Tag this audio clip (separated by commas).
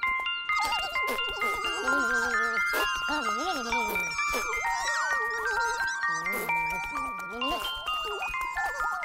Music, Jingle